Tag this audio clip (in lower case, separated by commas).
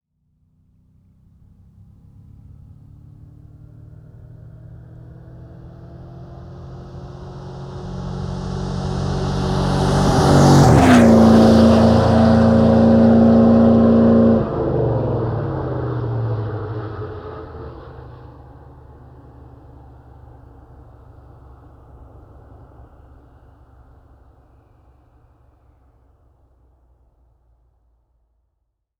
car passing by, motor vehicle (road), vehicle, car